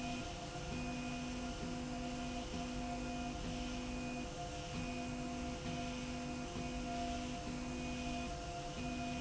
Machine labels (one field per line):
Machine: slide rail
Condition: normal